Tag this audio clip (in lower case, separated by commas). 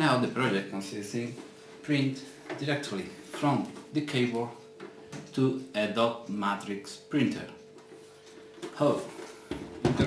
speech